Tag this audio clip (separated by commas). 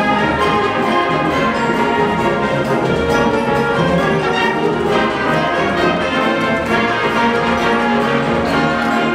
Music, Orchestra